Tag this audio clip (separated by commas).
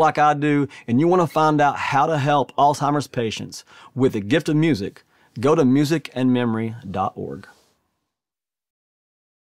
Speech